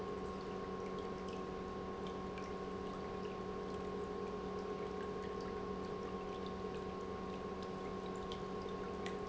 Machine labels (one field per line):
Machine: pump